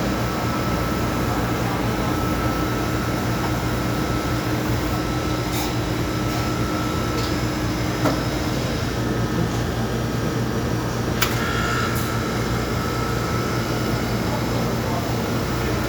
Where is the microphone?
in a cafe